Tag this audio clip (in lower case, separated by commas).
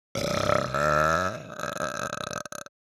eructation